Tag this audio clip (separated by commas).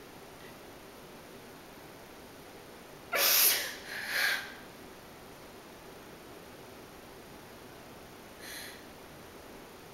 Silence